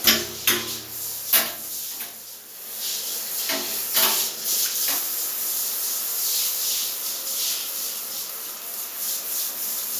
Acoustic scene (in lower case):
restroom